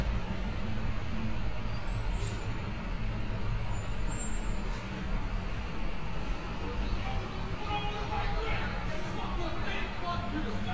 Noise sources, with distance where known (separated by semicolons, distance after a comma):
large-sounding engine; person or small group shouting, near